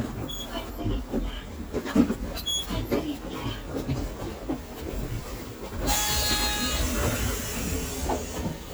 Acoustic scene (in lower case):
bus